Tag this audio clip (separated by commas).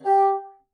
Musical instrument, Music, woodwind instrument